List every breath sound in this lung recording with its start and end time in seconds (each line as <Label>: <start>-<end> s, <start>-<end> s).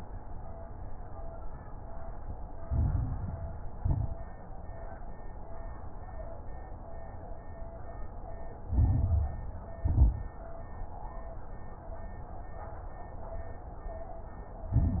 Inhalation: 2.62-3.78 s, 8.64-9.57 s, 14.71-15.00 s
Exhalation: 3.78-4.38 s, 9.79-10.38 s
Crackles: 2.62-3.78 s, 3.78-4.38 s, 8.64-9.57 s, 9.79-10.38 s, 14.71-15.00 s